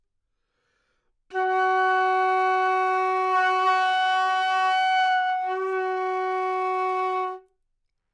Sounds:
woodwind instrument
music
musical instrument

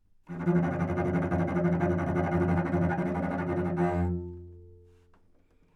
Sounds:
musical instrument
music
bowed string instrument

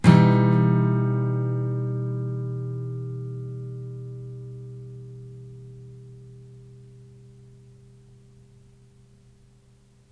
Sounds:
strum
guitar
music
musical instrument
plucked string instrument

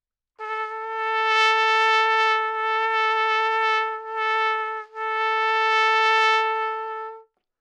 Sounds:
brass instrument
music
musical instrument
trumpet

